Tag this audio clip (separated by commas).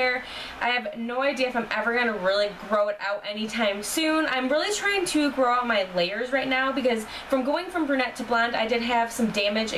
Speech